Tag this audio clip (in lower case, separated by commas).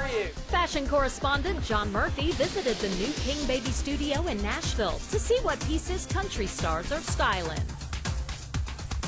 music, speech